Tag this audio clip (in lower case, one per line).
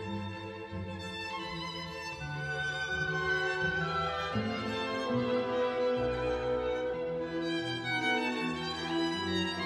violin
bowed string instrument